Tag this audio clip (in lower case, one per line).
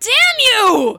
shout
human voice
yell